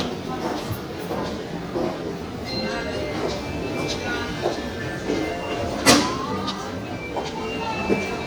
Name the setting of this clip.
subway station